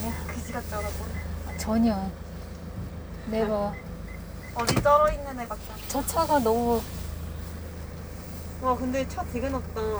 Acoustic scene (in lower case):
car